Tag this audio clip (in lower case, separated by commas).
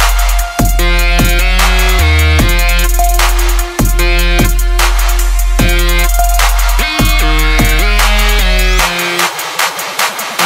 acoustic guitar, guitar, strum, electric guitar, musical instrument, music, plucked string instrument